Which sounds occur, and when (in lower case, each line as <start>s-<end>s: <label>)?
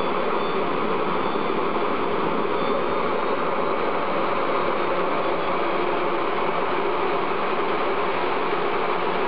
0.0s-9.2s: mechanisms
0.0s-9.2s: wind